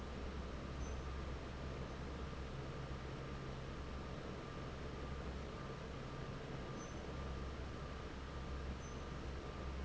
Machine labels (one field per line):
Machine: fan